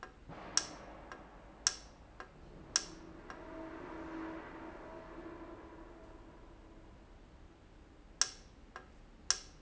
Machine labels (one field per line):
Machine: valve